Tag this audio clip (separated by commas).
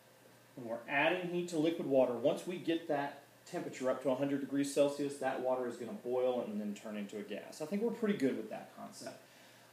Speech